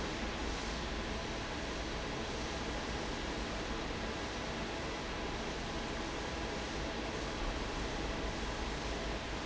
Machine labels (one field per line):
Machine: fan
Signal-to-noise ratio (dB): -6 dB